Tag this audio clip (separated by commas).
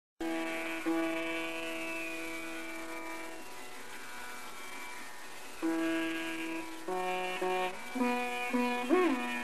Sitar, Plucked string instrument, Musical instrument, Music